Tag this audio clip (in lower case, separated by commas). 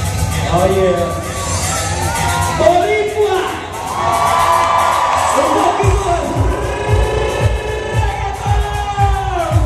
music, male singing, speech